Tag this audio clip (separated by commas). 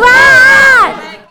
Screaming, Human voice